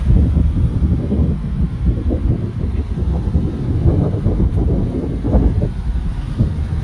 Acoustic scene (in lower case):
street